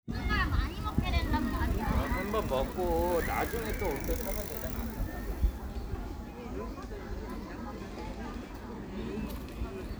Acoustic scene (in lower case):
park